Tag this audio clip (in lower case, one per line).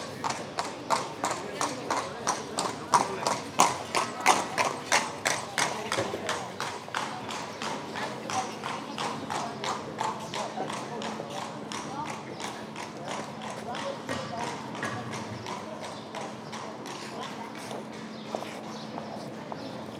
animal
livestock